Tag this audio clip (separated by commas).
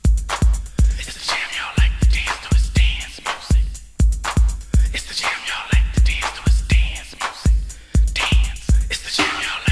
Music